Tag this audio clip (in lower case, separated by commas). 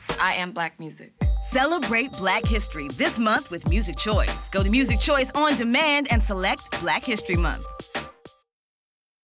music, speech